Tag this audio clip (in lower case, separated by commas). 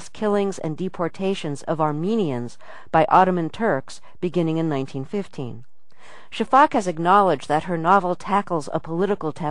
speech